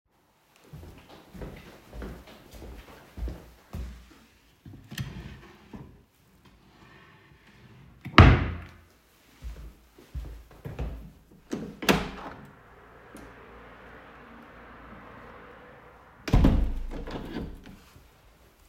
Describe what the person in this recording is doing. I walked into the living room and opened a wardrobe drawer. I took a book from the drawer. Then I moved toward the window and opened and closed it.